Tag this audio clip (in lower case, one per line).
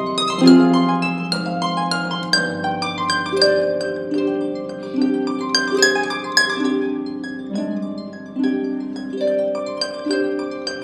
music
plucked string instrument
musical instrument
playing harp
harp